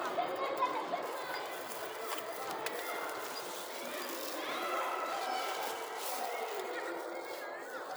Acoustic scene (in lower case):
residential area